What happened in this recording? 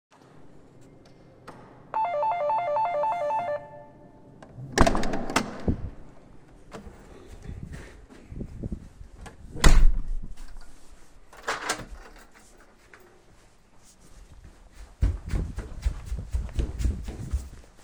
A bell sound, door opens and closes, door gets locked and then running through the hallway.